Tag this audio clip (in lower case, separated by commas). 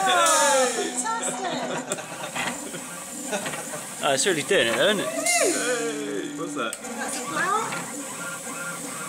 speech